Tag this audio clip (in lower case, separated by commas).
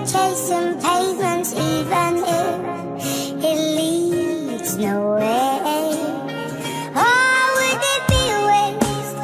music, music for children